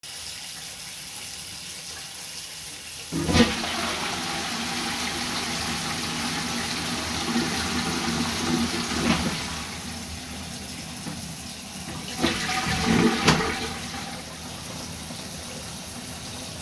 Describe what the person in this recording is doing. flushed toilet while water is running in the background.